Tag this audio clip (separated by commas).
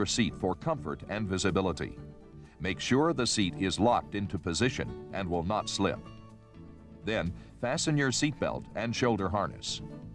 Speech, Music